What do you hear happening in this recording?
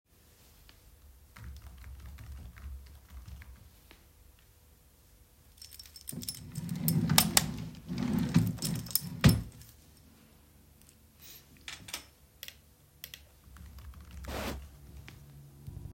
I was typing on the keyboard, then stopped, I resumed again with the keyboard, I moved my keys, opened the drawer and closed it while turning on the light at the same time. I then clicked the mouse and went back to typing on the keyboard.